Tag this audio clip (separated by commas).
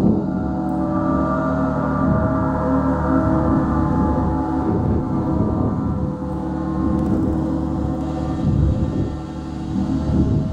Gong